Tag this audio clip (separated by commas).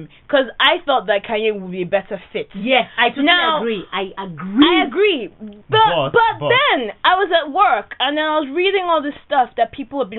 Speech